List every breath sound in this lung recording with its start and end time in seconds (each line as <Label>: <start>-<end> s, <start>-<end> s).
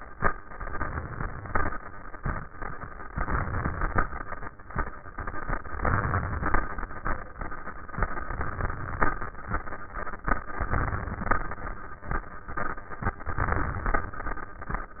Inhalation: 0.55-1.72 s, 3.09-4.26 s, 5.75-6.92 s, 7.96-9.13 s, 10.35-11.52 s, 13.28-14.45 s